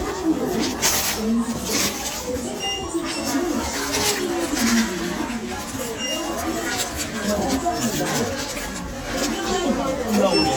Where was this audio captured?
in a crowded indoor space